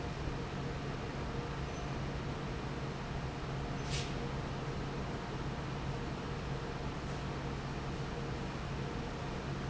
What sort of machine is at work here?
fan